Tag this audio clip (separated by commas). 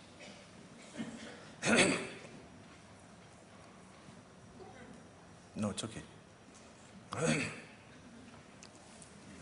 Speech